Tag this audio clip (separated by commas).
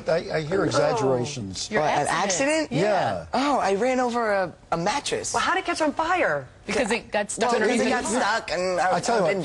Speech